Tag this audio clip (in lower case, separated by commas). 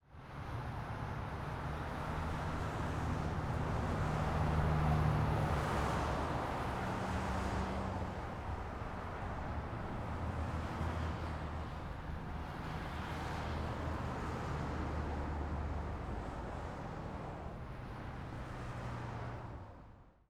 vehicle, car passing by, motor vehicle (road), car